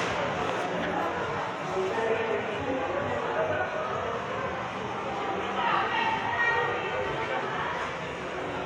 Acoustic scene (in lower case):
subway station